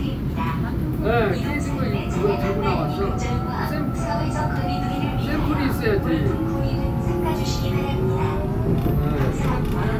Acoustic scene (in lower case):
subway train